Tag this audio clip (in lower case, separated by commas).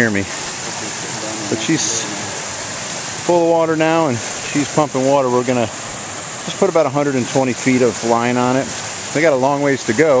pumping water